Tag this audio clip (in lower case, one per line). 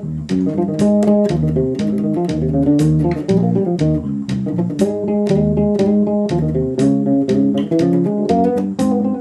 bass guitar
plucked string instrument
electric guitar
music
guitar
musical instrument